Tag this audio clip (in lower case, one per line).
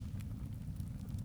fire
crackle